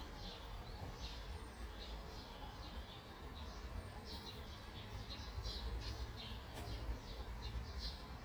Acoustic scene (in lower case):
park